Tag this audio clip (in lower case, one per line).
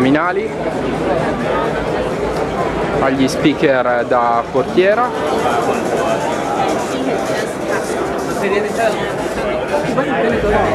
music
speech